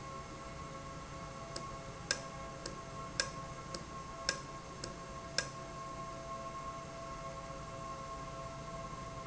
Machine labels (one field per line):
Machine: valve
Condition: normal